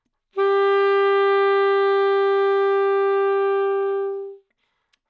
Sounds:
musical instrument
music
wind instrument

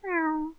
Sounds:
cat
pets
animal

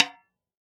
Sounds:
musical instrument
music
snare drum
percussion
drum

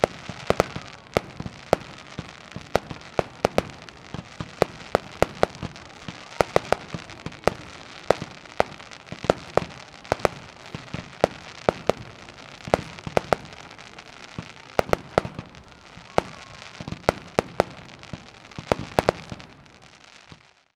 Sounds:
explosion
fireworks

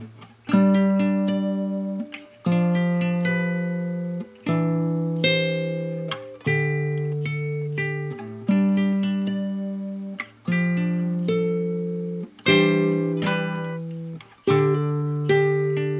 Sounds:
musical instrument
acoustic guitar
guitar
plucked string instrument
music

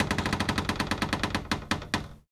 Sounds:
cupboard open or close
door
home sounds

